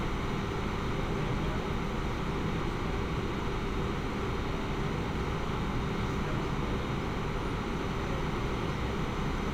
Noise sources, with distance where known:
large-sounding engine
person or small group talking, near

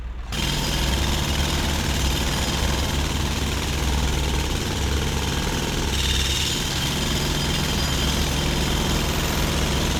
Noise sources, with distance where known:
jackhammer, near

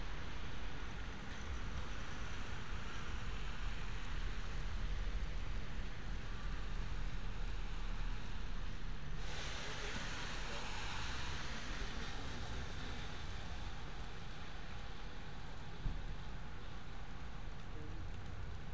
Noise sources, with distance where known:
background noise

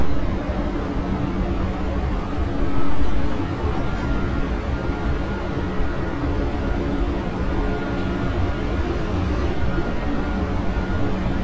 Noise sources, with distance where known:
large-sounding engine, near

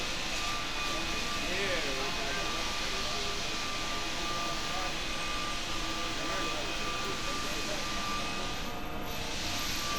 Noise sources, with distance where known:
unidentified powered saw, near
unidentified alert signal, near

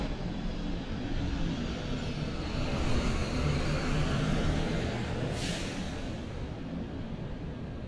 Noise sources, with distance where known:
large-sounding engine, near

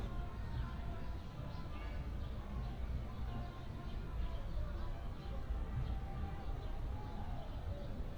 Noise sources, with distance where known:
music from an unclear source

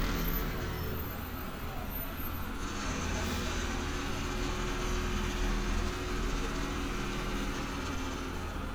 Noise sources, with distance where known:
jackhammer, far

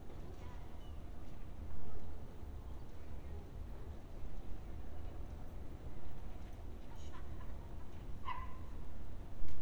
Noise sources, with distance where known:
dog barking or whining, far

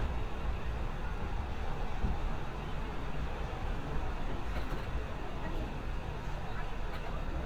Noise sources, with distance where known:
large-sounding engine, near

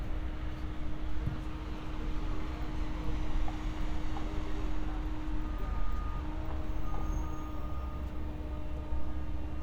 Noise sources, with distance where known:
engine of unclear size, far
reverse beeper

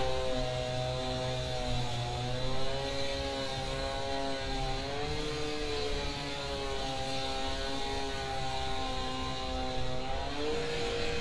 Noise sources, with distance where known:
unidentified powered saw, far

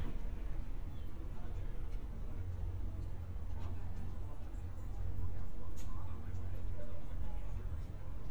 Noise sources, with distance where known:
person or small group talking

